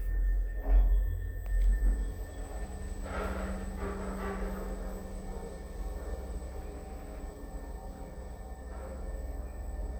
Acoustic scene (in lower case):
elevator